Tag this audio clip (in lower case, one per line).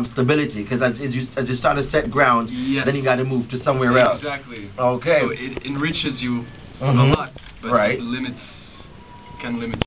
speech